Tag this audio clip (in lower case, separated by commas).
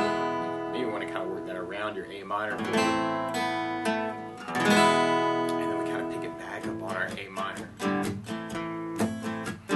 guitar, musical instrument, music, strum, speech, plucked string instrument